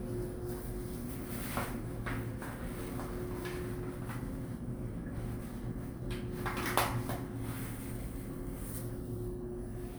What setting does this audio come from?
elevator